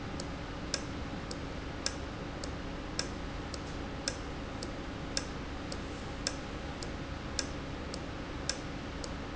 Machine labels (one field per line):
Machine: valve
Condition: normal